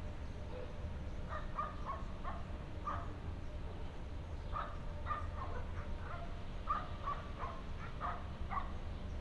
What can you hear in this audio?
dog barking or whining